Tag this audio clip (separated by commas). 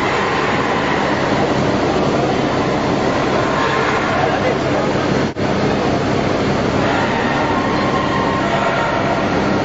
Speech